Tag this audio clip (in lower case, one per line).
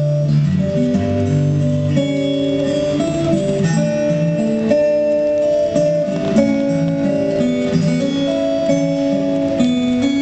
music